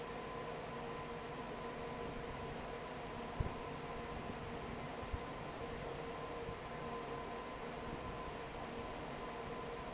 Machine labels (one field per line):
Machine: fan